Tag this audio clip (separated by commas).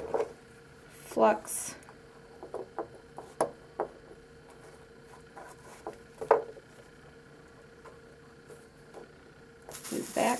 Speech